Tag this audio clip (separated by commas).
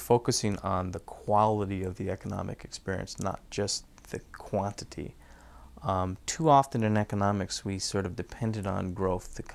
Speech